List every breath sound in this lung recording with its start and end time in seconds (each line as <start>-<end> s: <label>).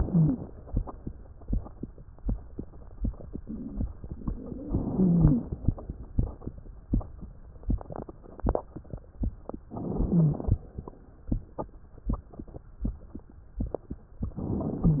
0.00-0.42 s: wheeze
4.68-5.60 s: inhalation
4.90-5.44 s: wheeze
4.98-5.40 s: wheeze
9.70-10.62 s: inhalation
9.96-10.38 s: wheeze
14.35-15.00 s: inhalation